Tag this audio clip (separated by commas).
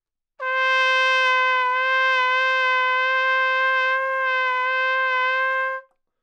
Music, Brass instrument, Musical instrument, Trumpet